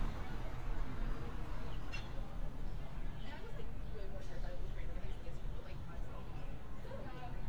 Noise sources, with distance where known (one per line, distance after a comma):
person or small group talking